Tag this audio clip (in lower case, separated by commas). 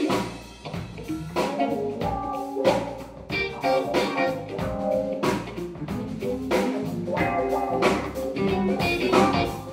music